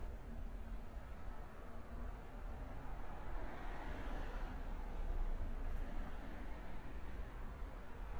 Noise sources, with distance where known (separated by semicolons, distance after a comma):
medium-sounding engine